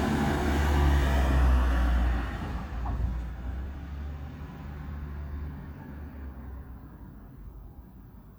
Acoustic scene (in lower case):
residential area